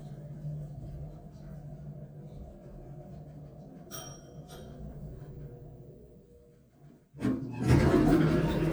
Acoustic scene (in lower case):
elevator